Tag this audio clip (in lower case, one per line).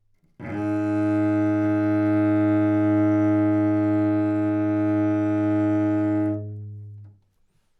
music
bowed string instrument
musical instrument